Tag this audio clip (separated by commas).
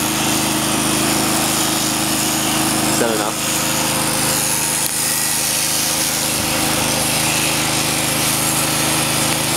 Medium engine (mid frequency), Speech